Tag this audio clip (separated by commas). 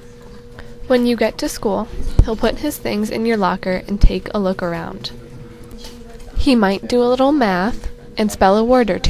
Speech